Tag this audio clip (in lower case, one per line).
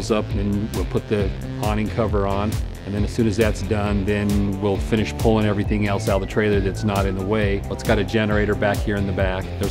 music
speech